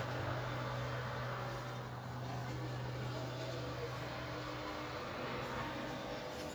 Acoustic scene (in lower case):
residential area